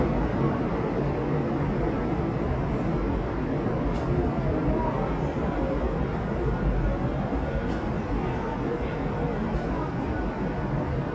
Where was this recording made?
in a subway station